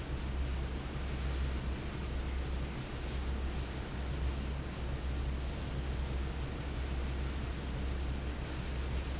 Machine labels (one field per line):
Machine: fan